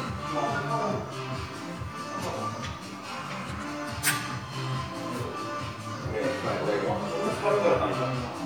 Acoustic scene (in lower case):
crowded indoor space